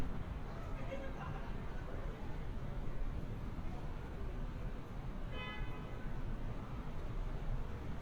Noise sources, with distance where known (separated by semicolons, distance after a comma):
car horn, far; unidentified human voice, far